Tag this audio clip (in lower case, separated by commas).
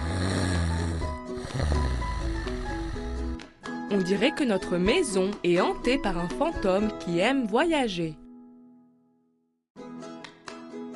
music, speech